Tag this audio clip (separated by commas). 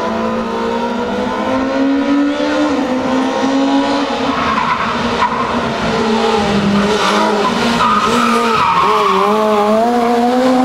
Motor vehicle (road), auto racing, Vehicle, Skidding, Car